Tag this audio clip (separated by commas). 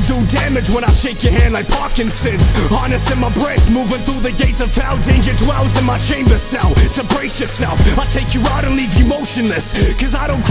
Music